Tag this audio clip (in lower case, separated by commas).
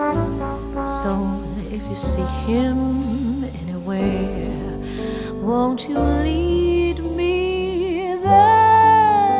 music, tender music